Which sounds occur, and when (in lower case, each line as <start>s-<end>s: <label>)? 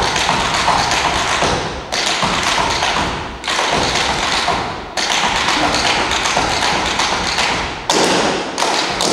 0.0s-1.6s: tap dance
0.0s-9.1s: background noise
1.9s-3.2s: tap dance
3.4s-4.7s: tap dance
4.9s-7.7s: tap dance
5.5s-5.7s: human voice
7.9s-9.1s: tap dance